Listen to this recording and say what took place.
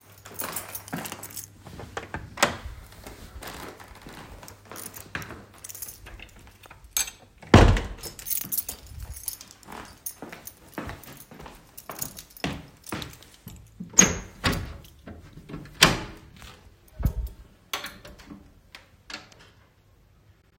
I walked towards my closed office door with a keychain in my hand. After entering my office, I closed the door behind me and walked towards the window to open it, with the keychain still in my hand.